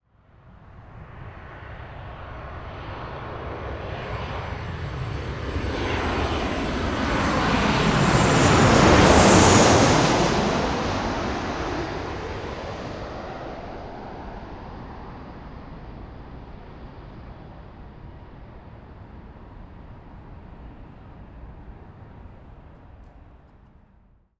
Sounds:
Aircraft, Vehicle, airplane

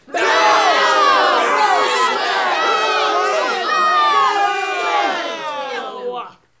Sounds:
Human group actions, Crowd

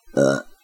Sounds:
Burping

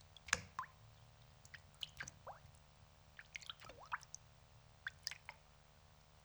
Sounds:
Raindrop, Water, Rain

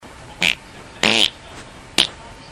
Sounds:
Fart

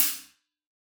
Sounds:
Music, Cymbal, Musical instrument, Hi-hat, Percussion

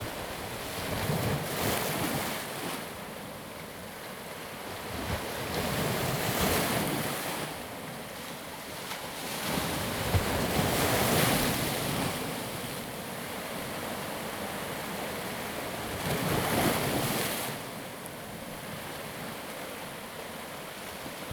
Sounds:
Ocean, Water, surf

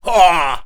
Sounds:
Human voice, Speech, man speaking

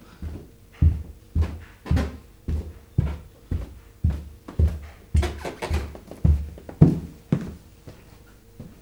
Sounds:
footsteps

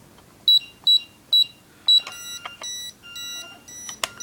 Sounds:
Alarm

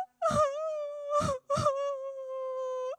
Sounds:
sobbing, Human voice

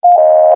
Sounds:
Telephone, Alarm

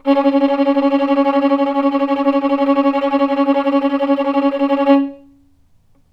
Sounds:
Musical instrument, Music, Bowed string instrument

